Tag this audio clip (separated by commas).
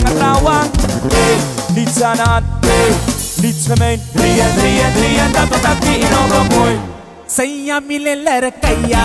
Music